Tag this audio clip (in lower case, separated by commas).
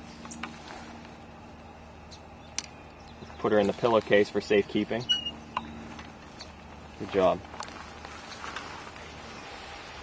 speech, outside, rural or natural